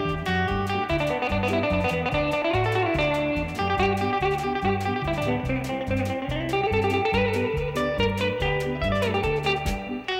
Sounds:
music, new-age music

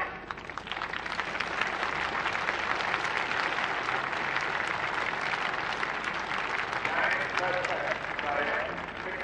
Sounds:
speech

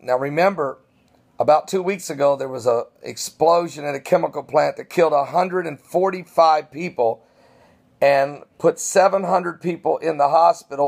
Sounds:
speech

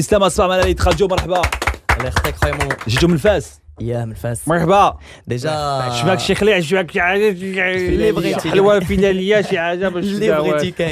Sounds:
speech

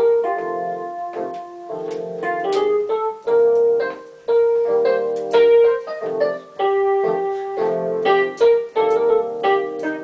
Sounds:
keyboard (musical), piano, electric piano

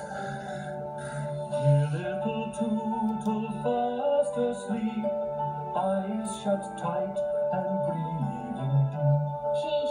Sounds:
soundtrack music, music

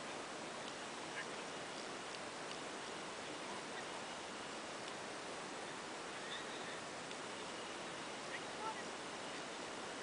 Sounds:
speech

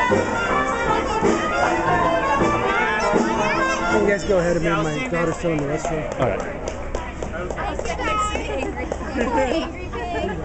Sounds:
kid speaking, speech, music

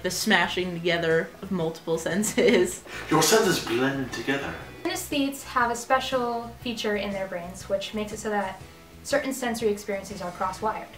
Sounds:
music, speech

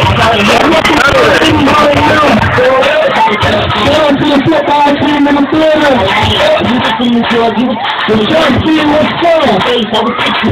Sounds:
speech, music

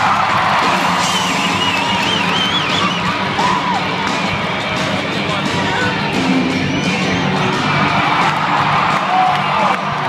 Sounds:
music, electronic music, speech

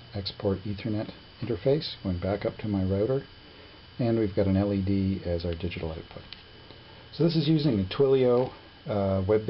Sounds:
speech

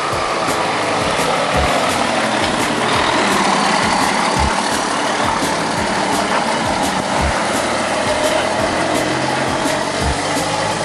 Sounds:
vehicle, truck

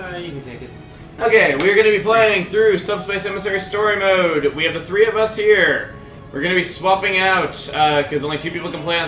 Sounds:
speech, music

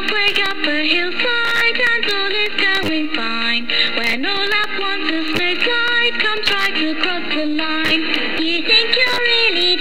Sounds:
music

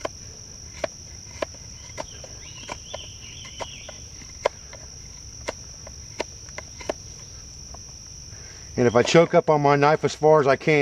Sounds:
insect, cricket

